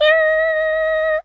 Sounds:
Human voice, Singing

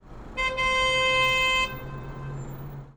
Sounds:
Alarm, Vehicle horn, Vehicle, Car, roadway noise, Motor vehicle (road)

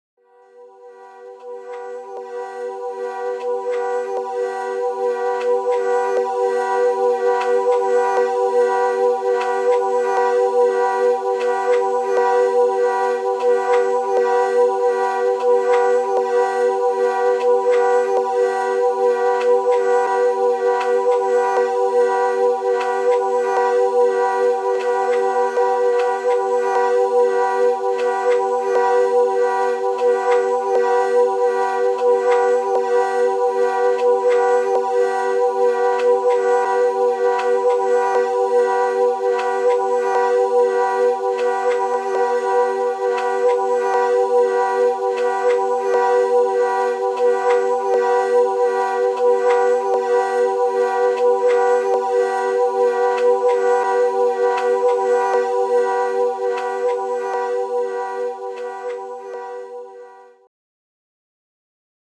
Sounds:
Musical instrument, Music, woodwind instrument

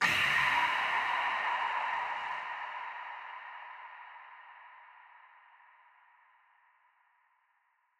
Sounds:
Breathing, Respiratory sounds

